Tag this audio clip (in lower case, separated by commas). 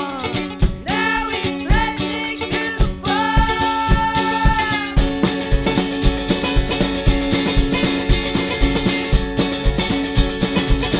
blues